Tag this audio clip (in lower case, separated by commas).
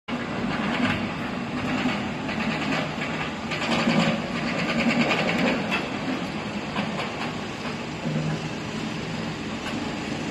roller coaster running